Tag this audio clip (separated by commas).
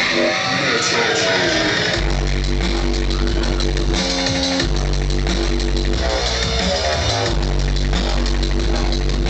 Heavy metal, Music